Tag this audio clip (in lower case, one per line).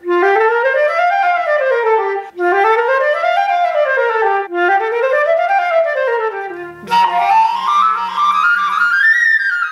playing flute